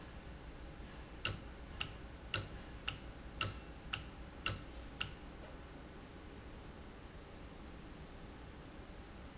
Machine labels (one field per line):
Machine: valve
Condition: normal